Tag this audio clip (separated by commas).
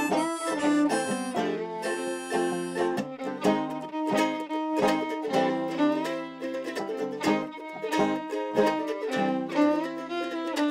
Violin, Bowed string instrument, Pizzicato